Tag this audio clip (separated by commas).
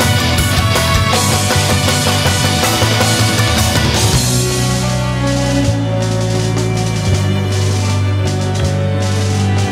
Music, Angry music